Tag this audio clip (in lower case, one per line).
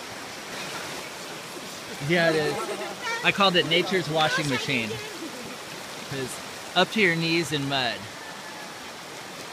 stream
speech